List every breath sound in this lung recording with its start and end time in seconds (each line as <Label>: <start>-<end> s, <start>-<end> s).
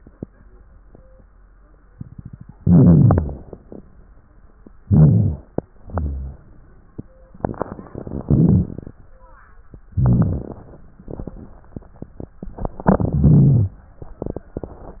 Inhalation: 2.60-3.70 s, 4.83-5.66 s, 8.21-8.98 s, 9.86-10.63 s, 12.81-13.76 s
Exhalation: 5.63-6.46 s